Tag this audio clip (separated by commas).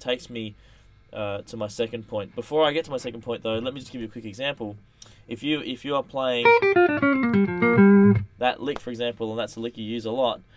Guitar, Musical instrument, Music, Electronic tuner, Plucked string instrument, Speech